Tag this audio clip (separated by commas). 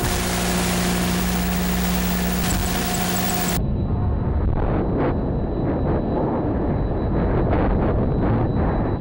outside, rural or natural